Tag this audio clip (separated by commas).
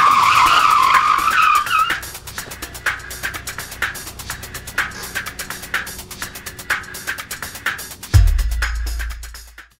Music, Car, Skidding, Motor vehicle (road), Vehicle